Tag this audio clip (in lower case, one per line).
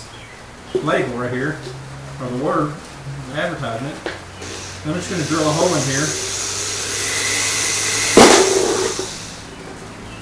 speech